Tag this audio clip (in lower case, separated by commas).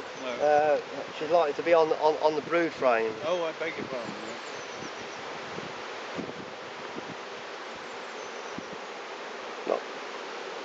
animal, insect, speech, bee or wasp